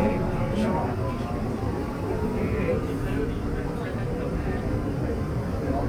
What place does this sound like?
subway train